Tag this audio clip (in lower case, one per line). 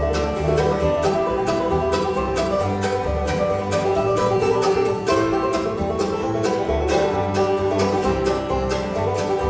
bowed string instrument
music
banjo
fiddle
plucked string instrument
country
guitar
jazz
musical instrument